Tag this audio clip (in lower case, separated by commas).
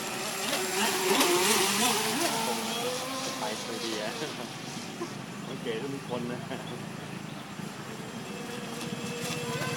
vehicle, speech, motorboat